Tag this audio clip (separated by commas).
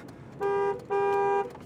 Vehicle, Motor vehicle (road), Car